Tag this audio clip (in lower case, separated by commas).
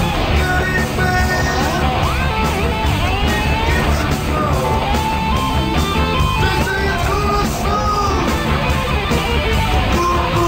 music